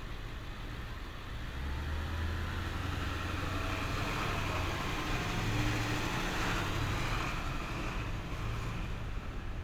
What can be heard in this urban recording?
engine of unclear size